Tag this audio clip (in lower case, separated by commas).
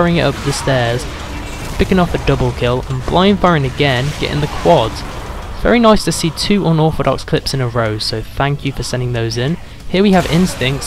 speech